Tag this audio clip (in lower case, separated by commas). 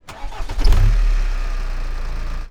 engine, car, engine starting, motor vehicle (road), vehicle